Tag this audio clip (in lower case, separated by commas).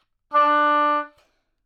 musical instrument, music, wind instrument